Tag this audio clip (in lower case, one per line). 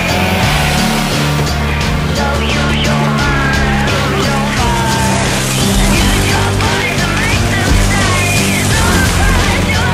music